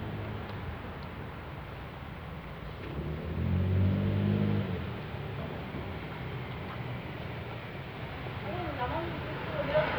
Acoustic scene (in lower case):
residential area